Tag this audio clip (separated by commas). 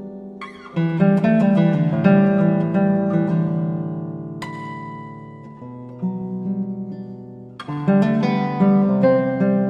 Guitar, Plucked string instrument, Acoustic guitar, Music, Musical instrument